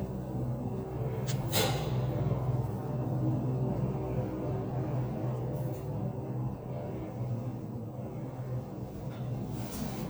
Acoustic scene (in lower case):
elevator